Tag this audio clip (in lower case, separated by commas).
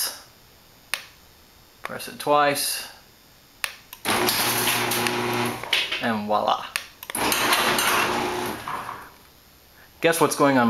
speech, inside a small room